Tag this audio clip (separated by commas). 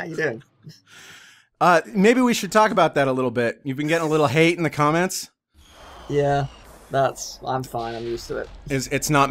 Speech